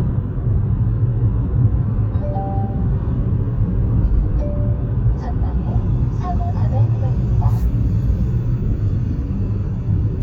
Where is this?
in a car